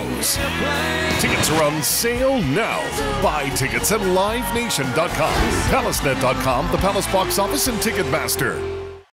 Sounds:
speech, music

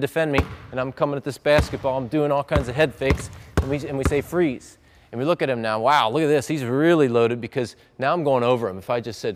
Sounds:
basketball bounce

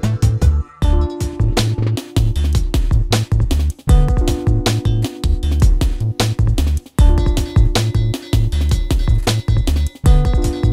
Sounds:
music

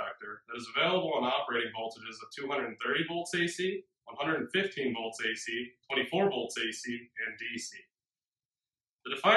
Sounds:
speech

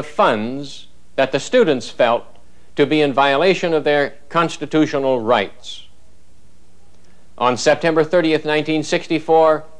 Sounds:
monologue, male speech, speech

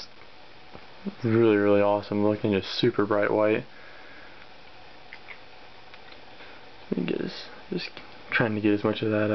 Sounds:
speech

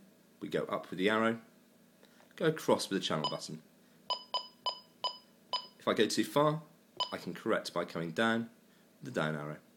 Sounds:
speech

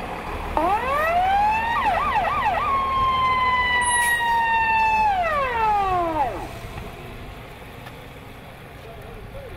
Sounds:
fire engine, truck, siren, vehicle, motor vehicle (road), emergency vehicle, speech

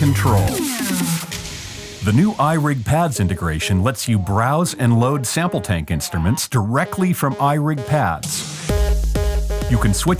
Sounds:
speech, music

